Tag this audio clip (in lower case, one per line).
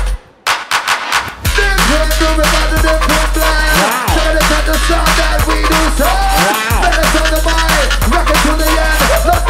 drum and bass
electronic music
music